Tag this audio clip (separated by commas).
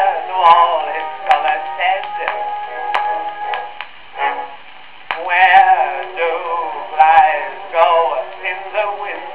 Music, Singing, Synthetic singing